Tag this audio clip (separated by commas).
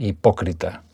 Human voice, Speech, Male speech